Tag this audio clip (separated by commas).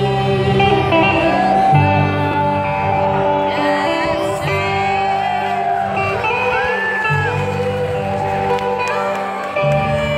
Soul music, Country, Music